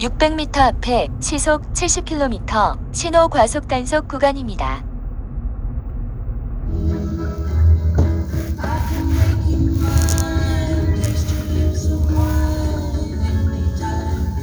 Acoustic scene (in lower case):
car